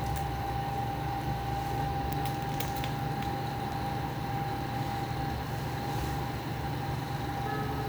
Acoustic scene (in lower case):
elevator